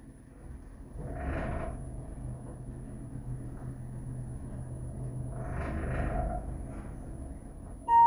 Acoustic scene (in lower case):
elevator